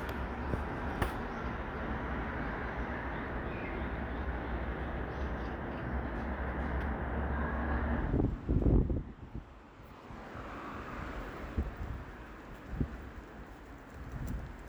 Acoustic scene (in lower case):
street